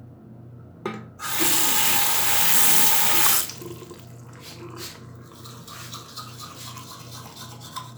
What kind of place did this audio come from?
restroom